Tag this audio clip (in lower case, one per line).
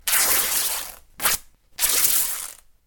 tearing